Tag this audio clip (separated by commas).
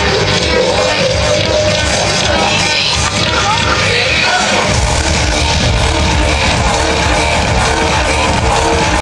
Electronica, Music, Speech